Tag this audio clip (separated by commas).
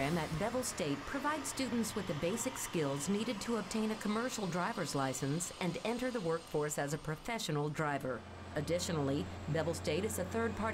Speech